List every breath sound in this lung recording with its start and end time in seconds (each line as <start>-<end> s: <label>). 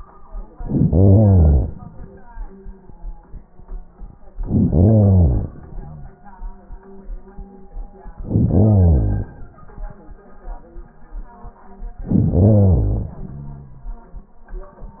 0.53-1.77 s: inhalation
4.39-5.62 s: inhalation
5.62-6.66 s: exhalation
8.20-9.34 s: inhalation
12.03-13.20 s: inhalation
13.23-14.40 s: exhalation